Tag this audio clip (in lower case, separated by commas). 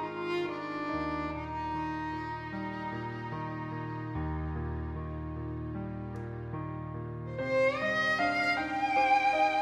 violin, music, musical instrument